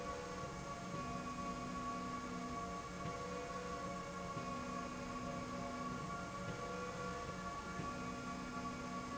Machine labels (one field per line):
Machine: slide rail